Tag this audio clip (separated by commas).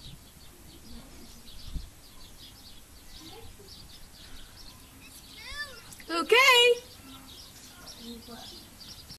Speech